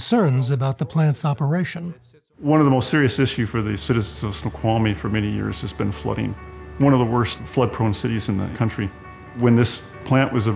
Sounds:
music
speech

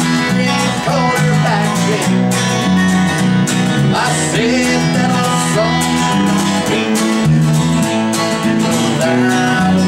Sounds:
music

